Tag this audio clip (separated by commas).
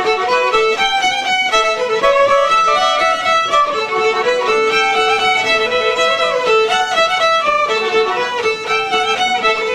Music, Musical instrument, playing violin, fiddle